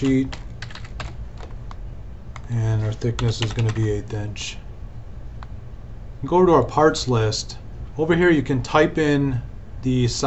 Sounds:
speech

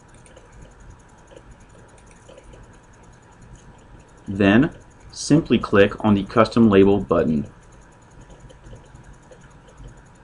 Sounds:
speech

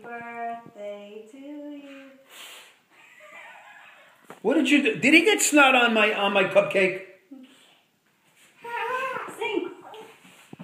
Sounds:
music, speech, inside a large room or hall, laughter

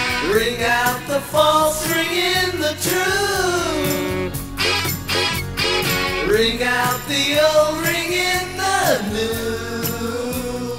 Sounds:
music

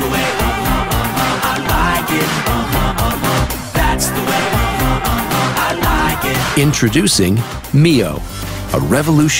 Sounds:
speech, music

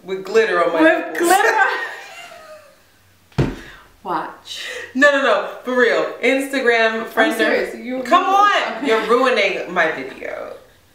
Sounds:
laughter, speech

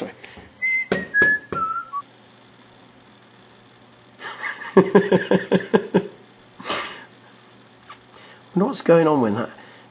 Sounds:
speech

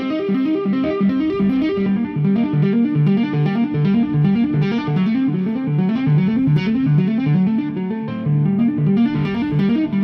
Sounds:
tapping (guitar technique), music

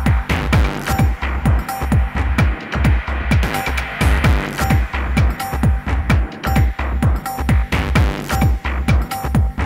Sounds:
music, techno

